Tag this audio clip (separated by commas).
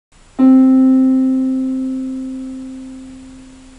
Piano, Keyboard (musical), Musical instrument, Music